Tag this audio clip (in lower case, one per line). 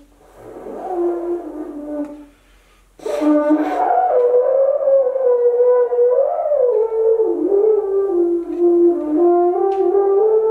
playing french horn